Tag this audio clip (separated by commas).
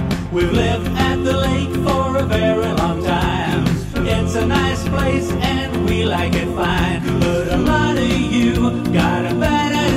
Music